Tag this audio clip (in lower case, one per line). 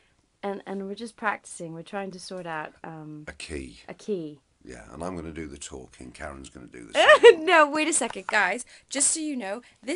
speech